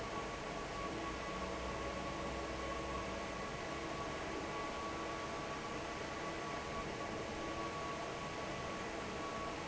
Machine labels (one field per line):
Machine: fan